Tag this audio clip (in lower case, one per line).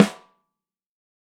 percussion
music
snare drum
musical instrument
drum